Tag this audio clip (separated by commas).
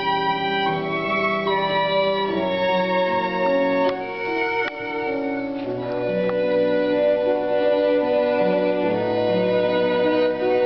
fiddle, Musical instrument, Music